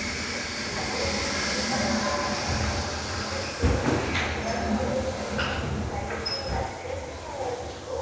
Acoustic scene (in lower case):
restroom